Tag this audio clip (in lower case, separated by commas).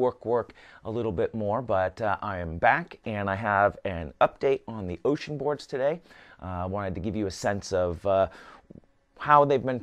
speech